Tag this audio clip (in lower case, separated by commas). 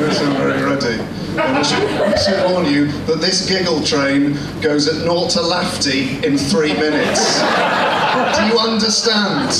chuckle, speech